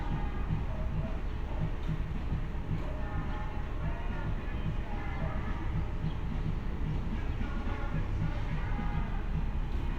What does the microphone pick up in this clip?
music from a fixed source